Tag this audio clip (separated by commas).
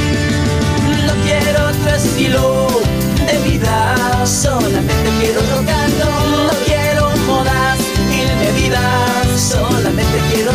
Music, Rock and roll, Roll